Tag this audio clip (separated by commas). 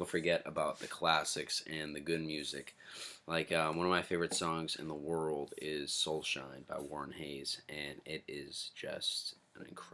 Speech